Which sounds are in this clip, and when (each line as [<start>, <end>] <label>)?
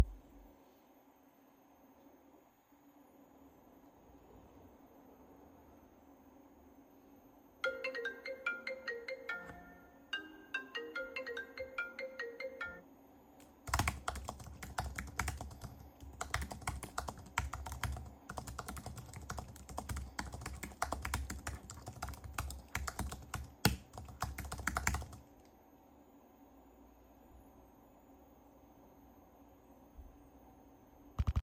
[7.51, 12.88] phone ringing
[13.64, 25.30] keyboard typing